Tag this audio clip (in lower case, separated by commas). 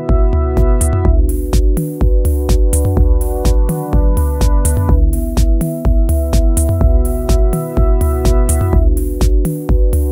techno, drum, music, electronic music, dubstep, musical instrument